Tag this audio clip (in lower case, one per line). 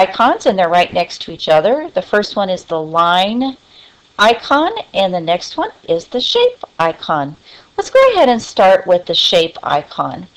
speech